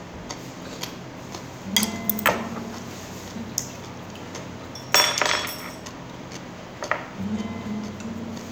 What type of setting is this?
restaurant